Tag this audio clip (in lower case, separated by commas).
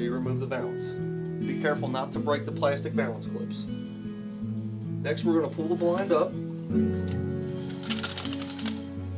speech, music